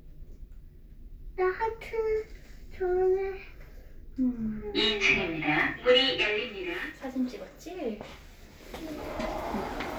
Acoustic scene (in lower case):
elevator